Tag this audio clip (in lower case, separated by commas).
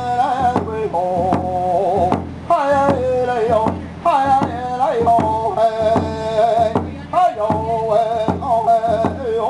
speech, music